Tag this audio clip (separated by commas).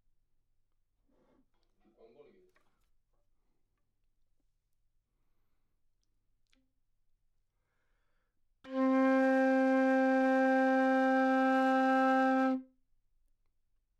Music, Musical instrument, Wind instrument